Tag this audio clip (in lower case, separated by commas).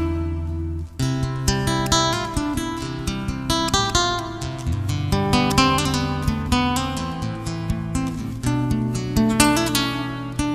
musical instrument, guitar, music, strum, plucked string instrument